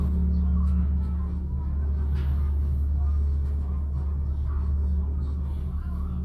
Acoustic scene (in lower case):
elevator